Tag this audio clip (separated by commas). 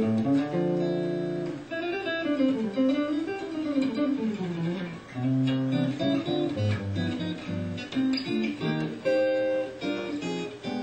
Electric guitar, Strum, playing electric guitar, Guitar, Music, Acoustic guitar, Plucked string instrument, Musical instrument